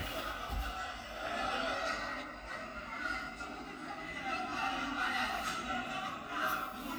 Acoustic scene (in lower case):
cafe